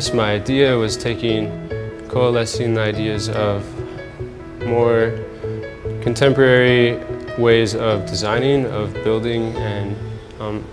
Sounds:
Speech, Music

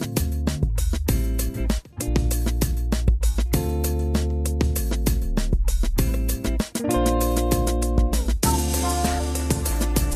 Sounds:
Music

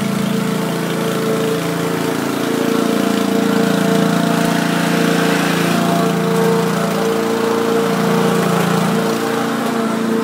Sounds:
lawn mowing

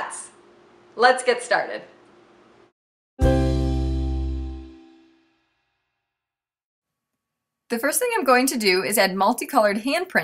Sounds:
Speech, Music

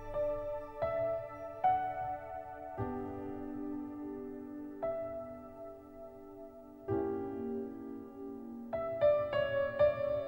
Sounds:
Music

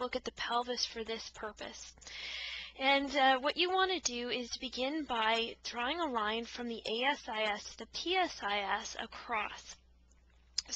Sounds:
Speech

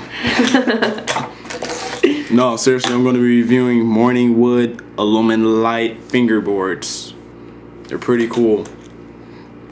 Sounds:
Speech

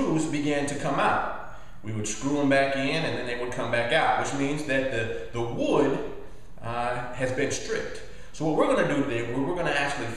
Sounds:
Speech

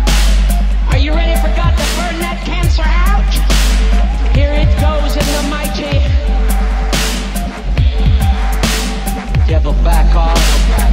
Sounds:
Music, Dubstep, Speech

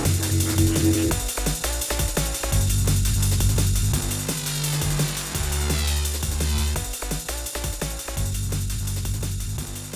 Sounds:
Electronic music, Dubstep, Music

